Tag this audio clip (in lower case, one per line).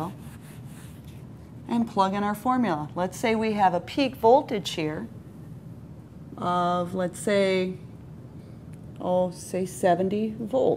speech